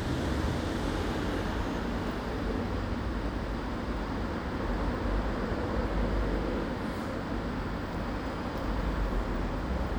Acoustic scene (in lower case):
residential area